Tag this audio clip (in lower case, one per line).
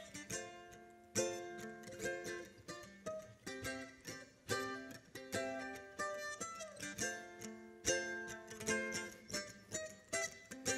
playing mandolin